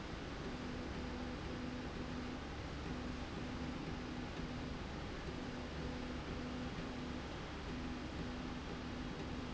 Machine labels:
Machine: slide rail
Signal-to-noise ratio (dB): 0 dB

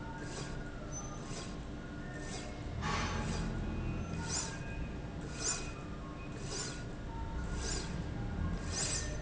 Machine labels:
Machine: slide rail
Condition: normal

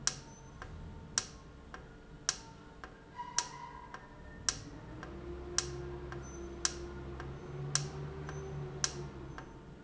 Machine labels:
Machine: valve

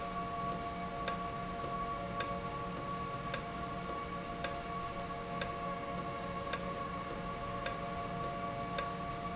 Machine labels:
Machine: valve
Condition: normal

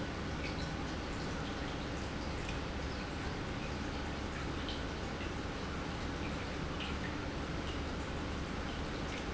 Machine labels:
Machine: pump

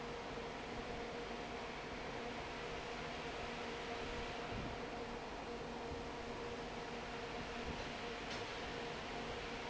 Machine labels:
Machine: fan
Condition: normal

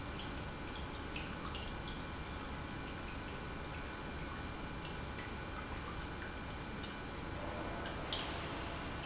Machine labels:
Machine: pump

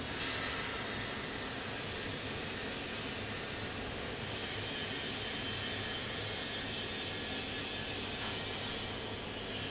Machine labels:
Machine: fan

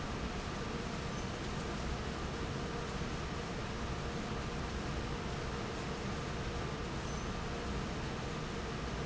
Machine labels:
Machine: fan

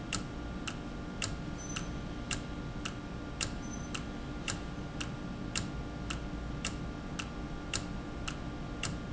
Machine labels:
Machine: valve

